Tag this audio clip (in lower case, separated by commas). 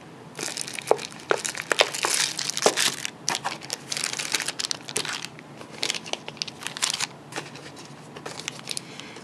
crumpling, speech